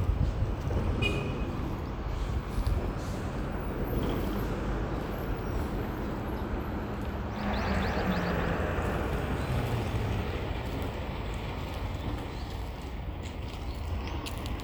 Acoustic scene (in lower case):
street